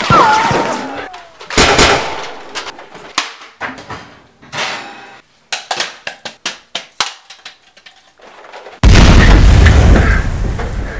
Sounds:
inside a large room or hall

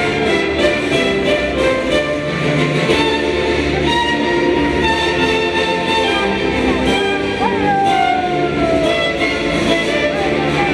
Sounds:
Musical instrument, fiddle, Music

